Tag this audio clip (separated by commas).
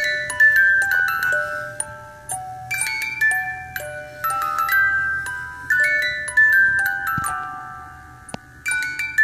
Music